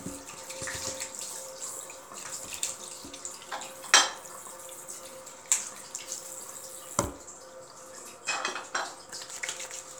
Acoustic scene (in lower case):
restroom